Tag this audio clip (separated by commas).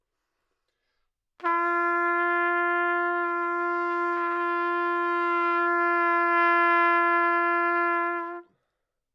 Trumpet, Music, Brass instrument, Musical instrument